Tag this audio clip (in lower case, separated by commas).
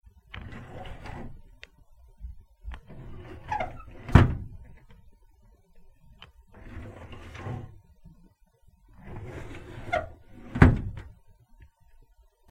home sounds, drawer open or close